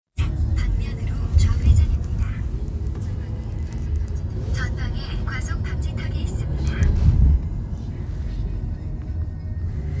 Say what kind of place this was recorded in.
car